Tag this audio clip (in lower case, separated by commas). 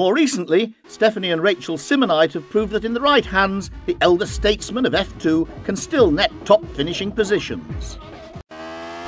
car, car passing by, speech, vehicle, music